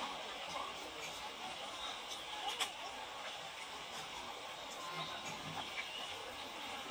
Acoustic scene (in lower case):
park